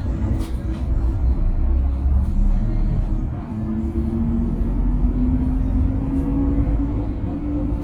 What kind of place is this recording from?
bus